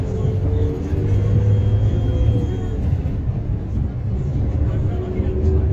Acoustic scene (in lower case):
bus